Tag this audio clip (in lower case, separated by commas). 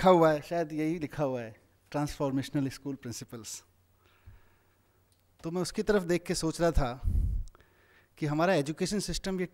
male speech, speech, narration